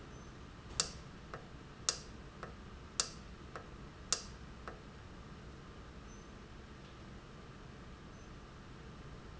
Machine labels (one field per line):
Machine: valve